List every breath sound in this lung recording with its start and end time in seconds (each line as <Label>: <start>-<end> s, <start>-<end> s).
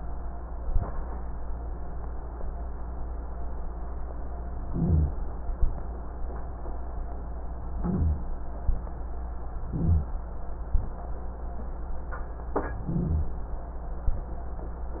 Inhalation: 4.67-5.22 s, 7.78-8.29 s, 9.70-10.21 s, 12.86-13.38 s
Exhalation: 5.56-6.00 s
Wheeze: 4.67-5.22 s, 7.78-8.29 s, 9.70-10.21 s, 12.86-13.38 s